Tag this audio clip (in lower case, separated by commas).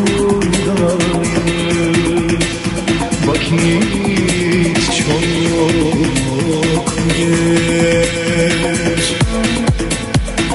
music